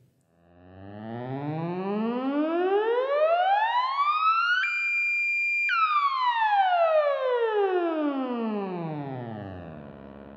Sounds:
playing theremin

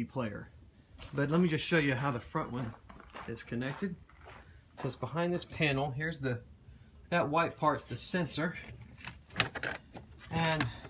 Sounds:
speech

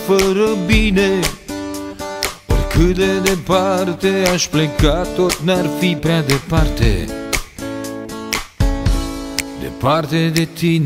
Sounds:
music

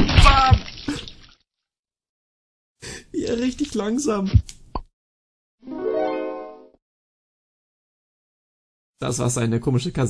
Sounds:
music
speech
plop

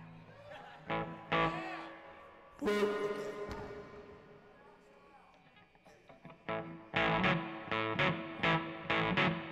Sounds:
music
speech

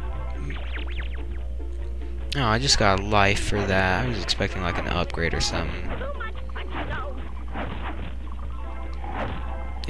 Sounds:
speech

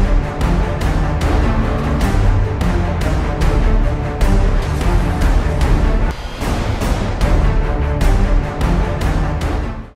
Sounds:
music

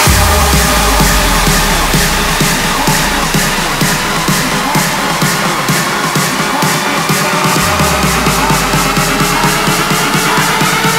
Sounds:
music

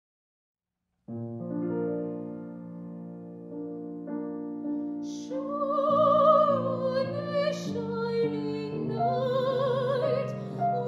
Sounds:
piano
music
singing
classical music

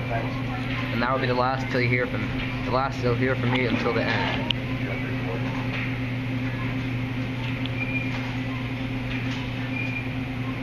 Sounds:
vehicle
car passing by
speech

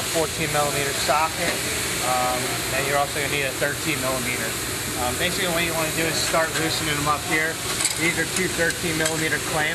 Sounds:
speech

